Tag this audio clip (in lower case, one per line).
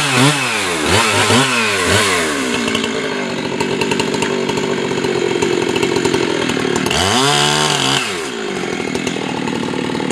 chainsaw
chainsawing trees